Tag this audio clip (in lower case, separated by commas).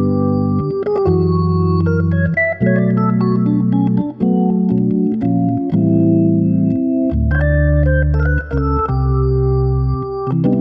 playing hammond organ